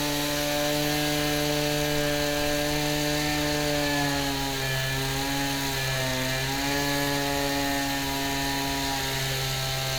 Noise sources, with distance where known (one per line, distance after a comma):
chainsaw, near